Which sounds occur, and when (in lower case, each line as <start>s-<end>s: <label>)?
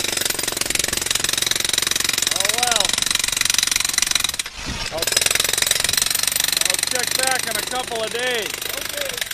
2.3s-9.2s: conversation
4.9s-9.3s: jackhammer
8.6s-9.2s: human voice
8.7s-9.2s: man speaking